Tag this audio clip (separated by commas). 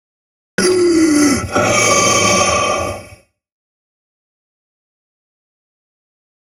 Respiratory sounds, Breathing